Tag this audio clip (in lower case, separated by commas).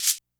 rattle (instrument), music, percussion, musical instrument